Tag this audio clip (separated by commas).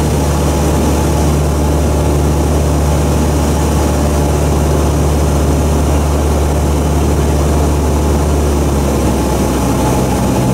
Aircraft, Propeller, Vehicle